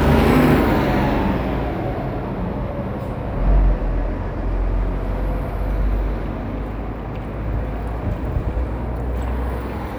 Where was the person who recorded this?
on a street